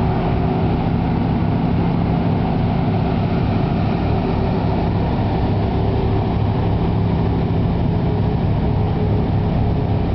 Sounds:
vehicle
truck

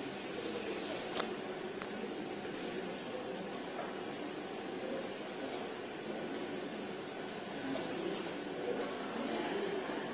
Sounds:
speech

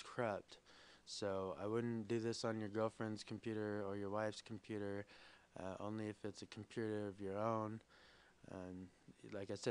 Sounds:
speech

